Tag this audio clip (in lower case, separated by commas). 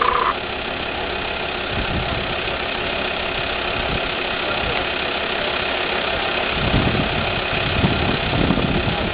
vehicle